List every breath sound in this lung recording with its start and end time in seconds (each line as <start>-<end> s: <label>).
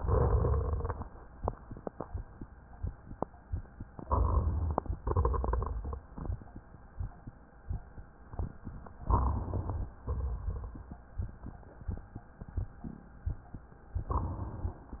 3.93-4.97 s: inhalation
3.93-4.97 s: rhonchi
4.98-6.63 s: exhalation
4.98-6.63 s: crackles
9.04-9.94 s: inhalation
9.04-9.94 s: rhonchi
10.04-11.04 s: exhalation
10.04-11.04 s: crackles